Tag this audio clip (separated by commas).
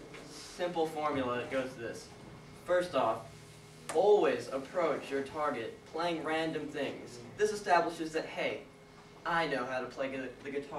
Speech